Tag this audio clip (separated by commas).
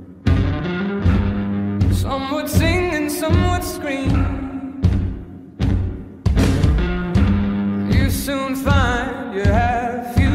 Music